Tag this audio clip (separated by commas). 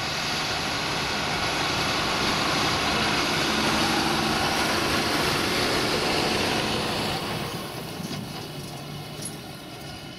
outside, rural or natural, Vehicle